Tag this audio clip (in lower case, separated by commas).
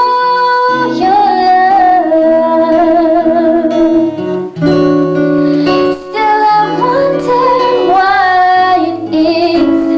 musical instrument, singing, music, synthetic singing